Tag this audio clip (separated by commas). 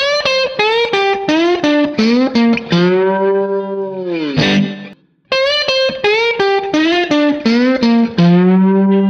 slide guitar